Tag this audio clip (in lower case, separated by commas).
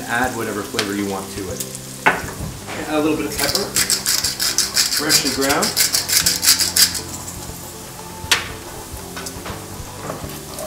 speech, inside a small room, music, dishes, pots and pans